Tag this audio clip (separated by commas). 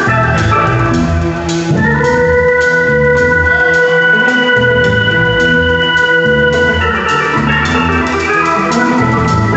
Music